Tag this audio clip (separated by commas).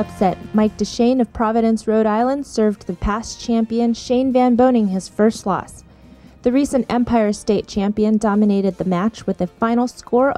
Speech, Music